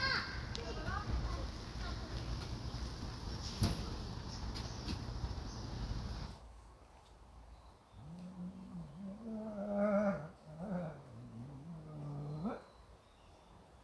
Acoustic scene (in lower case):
park